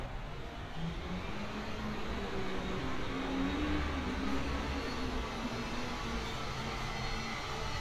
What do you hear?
unidentified powered saw